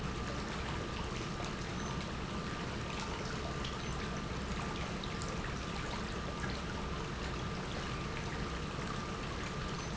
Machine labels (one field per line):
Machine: pump